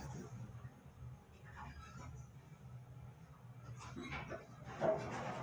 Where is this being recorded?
in an elevator